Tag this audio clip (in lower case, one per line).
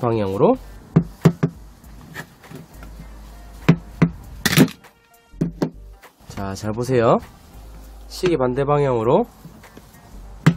hammering nails